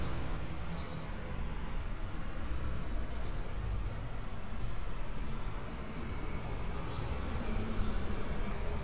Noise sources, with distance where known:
large-sounding engine, far

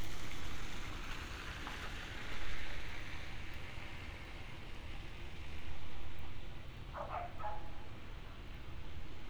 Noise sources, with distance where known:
medium-sounding engine
dog barking or whining, far

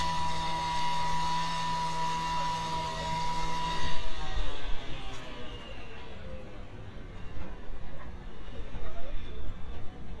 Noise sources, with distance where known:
unidentified powered saw, far

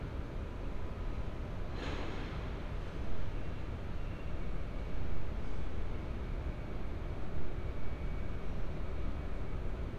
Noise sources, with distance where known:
engine of unclear size, near

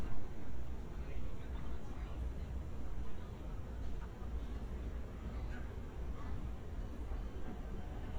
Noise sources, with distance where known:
unidentified human voice, far

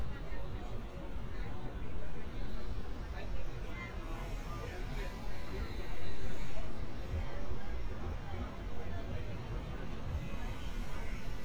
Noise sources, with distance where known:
person or small group talking, near

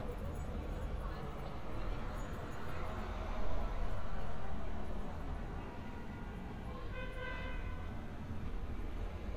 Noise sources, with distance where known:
car horn
person or small group talking, far

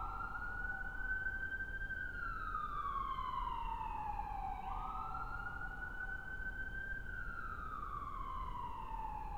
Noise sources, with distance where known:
siren, far

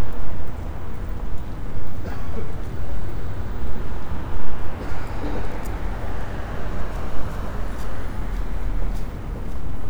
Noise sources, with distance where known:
unidentified human voice

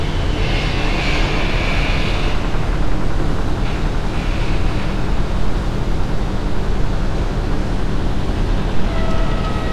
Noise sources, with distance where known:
engine of unclear size, near

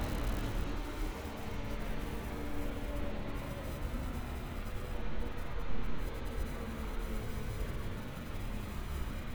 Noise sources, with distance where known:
large-sounding engine

